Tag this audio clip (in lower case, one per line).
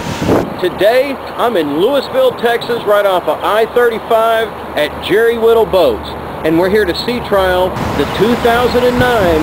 vehicle
speech
motorboat